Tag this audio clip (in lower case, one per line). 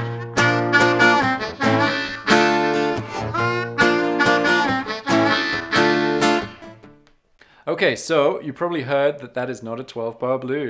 music
speech